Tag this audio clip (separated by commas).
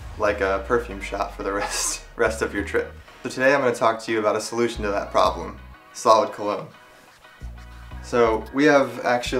Speech, Music